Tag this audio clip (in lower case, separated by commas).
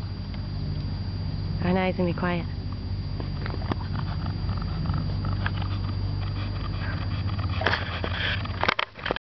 speech